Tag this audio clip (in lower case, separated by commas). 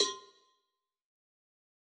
cowbell, bell